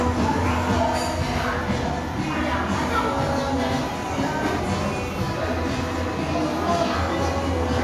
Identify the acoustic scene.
crowded indoor space